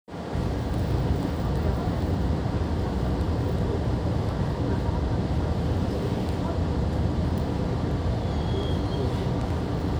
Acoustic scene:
subway train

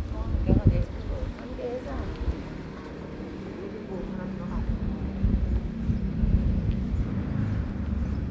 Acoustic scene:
residential area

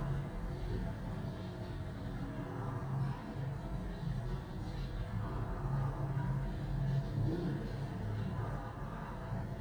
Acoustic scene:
elevator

